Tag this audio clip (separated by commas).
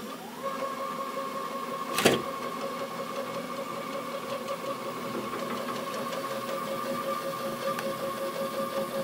Tools, Wood